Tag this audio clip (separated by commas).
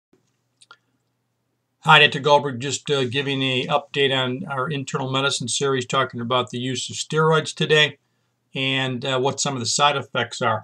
Speech